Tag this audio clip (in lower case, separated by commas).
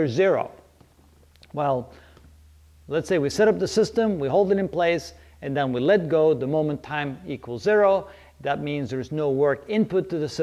speech